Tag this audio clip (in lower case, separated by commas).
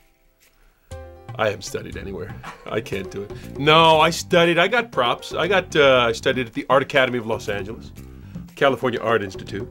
speech, music